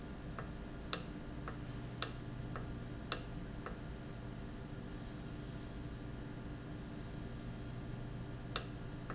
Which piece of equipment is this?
valve